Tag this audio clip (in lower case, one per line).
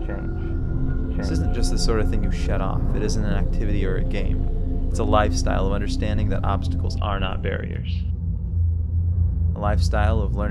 speech
music